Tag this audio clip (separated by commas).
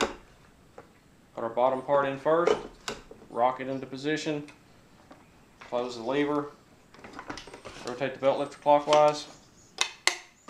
Speech